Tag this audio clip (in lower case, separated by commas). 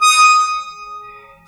squeak